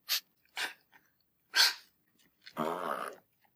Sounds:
animal, domestic animals, dog

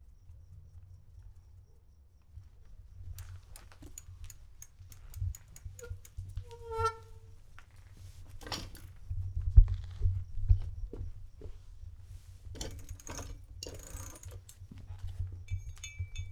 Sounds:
bicycle, vehicle

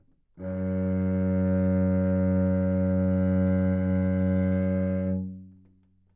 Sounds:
music, bowed string instrument, musical instrument

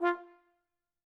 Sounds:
musical instrument, brass instrument, music

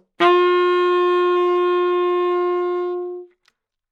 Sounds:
musical instrument, music, woodwind instrument

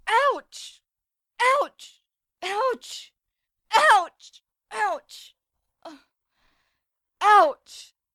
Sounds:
human voice

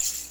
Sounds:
percussion, music, musical instrument, rattle (instrument)

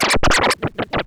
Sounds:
music, musical instrument, scratching (performance technique)

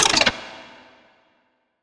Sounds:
mechanisms

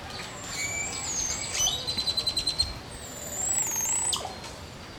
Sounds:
wild animals, animal, bird

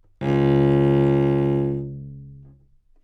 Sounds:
bowed string instrument, musical instrument, music

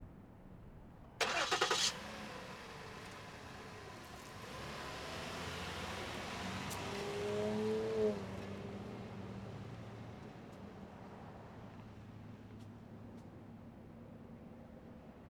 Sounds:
engine, engine starting

